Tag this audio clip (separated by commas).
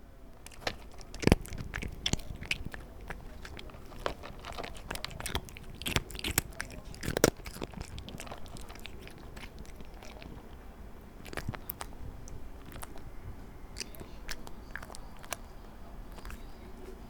Cat, Domestic animals, Animal